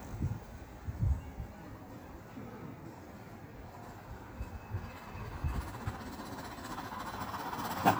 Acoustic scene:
park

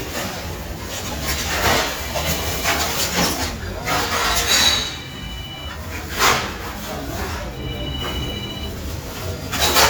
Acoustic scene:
residential area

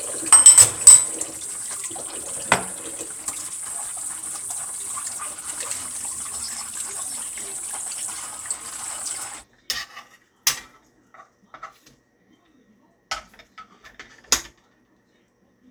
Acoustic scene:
kitchen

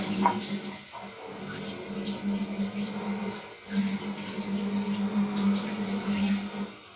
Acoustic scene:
restroom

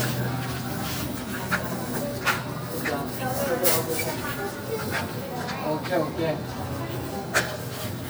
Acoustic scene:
crowded indoor space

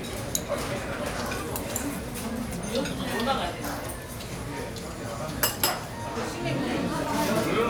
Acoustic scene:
crowded indoor space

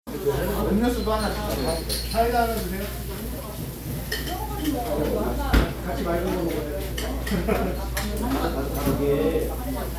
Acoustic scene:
crowded indoor space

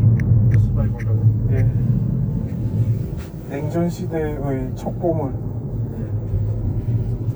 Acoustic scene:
car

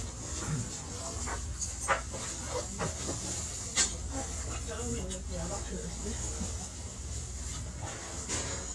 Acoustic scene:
restaurant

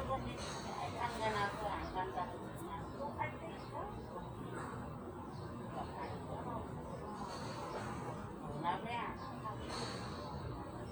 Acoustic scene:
park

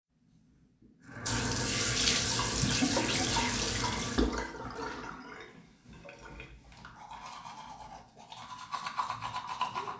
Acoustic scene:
restroom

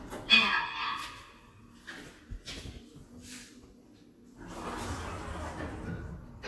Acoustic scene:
elevator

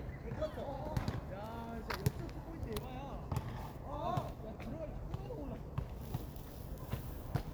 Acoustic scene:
park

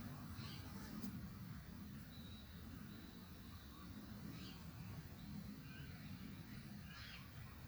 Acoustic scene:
park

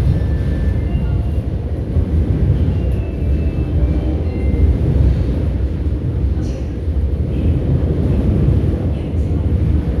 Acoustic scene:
subway station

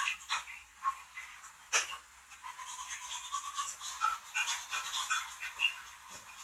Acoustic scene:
restroom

